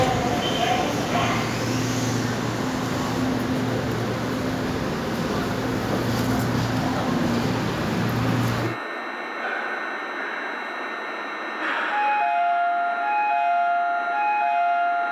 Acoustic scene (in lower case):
subway station